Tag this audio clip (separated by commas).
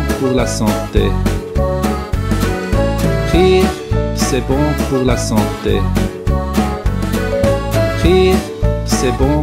Music, Speech